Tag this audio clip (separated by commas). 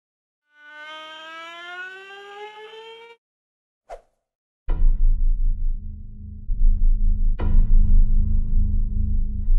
Music